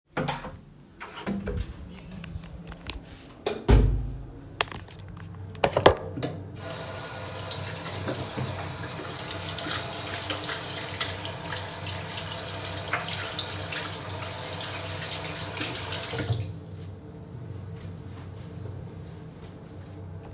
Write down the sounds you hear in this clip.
door, light switch, running water